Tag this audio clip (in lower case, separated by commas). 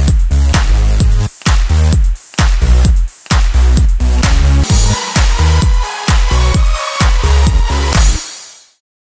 music